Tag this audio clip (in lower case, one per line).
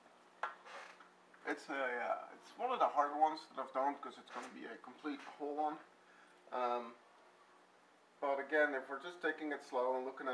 speech